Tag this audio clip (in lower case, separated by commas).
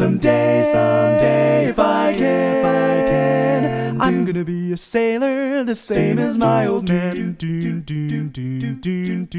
singing, music, a capella